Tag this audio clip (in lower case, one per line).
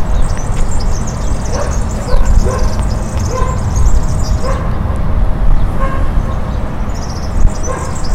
wild animals
animal
bird